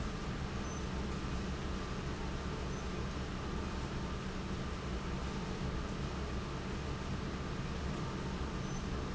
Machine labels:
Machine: fan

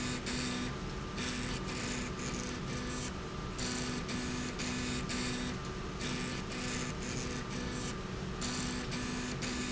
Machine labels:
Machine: slide rail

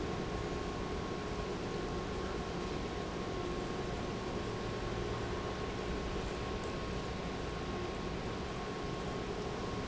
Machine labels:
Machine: pump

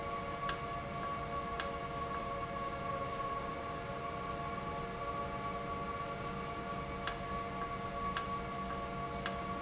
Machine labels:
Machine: valve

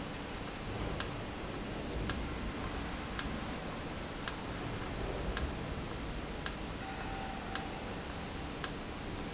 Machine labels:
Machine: valve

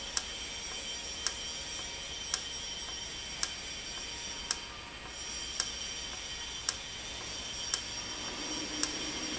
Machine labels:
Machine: valve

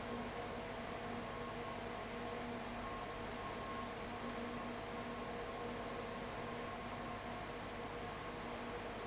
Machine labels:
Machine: fan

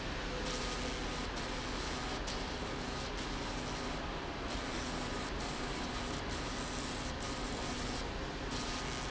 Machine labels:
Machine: slide rail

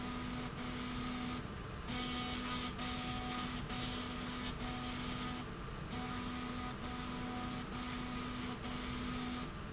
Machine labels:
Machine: slide rail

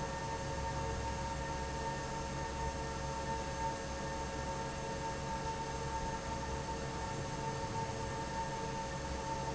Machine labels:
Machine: fan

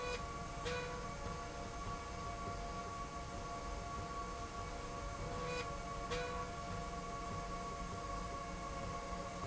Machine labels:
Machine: slide rail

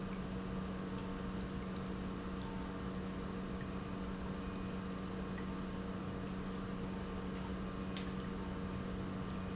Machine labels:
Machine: pump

